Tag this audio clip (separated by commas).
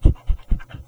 Dog, Animal, pets